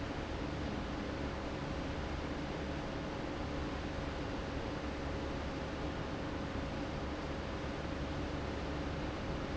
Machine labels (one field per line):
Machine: fan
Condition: abnormal